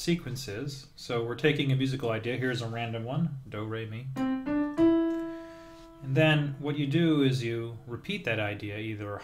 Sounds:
Harmonic, Speech, Music

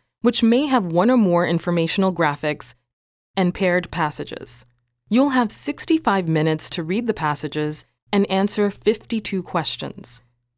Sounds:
Speech

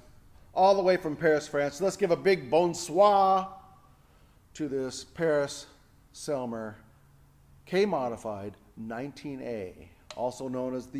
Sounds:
Speech

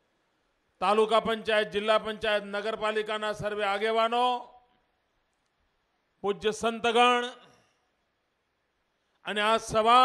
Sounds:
man speaking, Speech, Narration

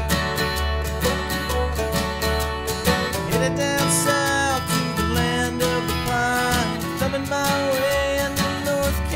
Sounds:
Music

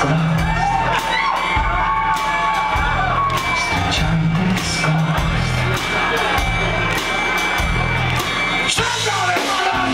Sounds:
Yell, Singing, inside a public space, Music

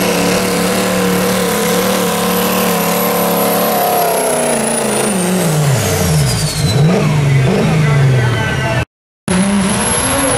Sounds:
Air brake, Truck, Vehicle, Speech

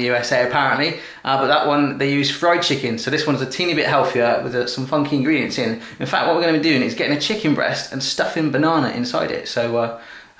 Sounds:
Speech

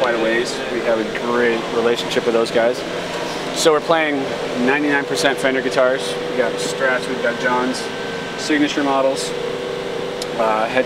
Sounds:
Speech

